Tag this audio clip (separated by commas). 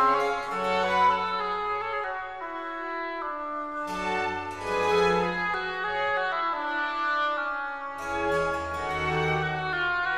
Brass instrument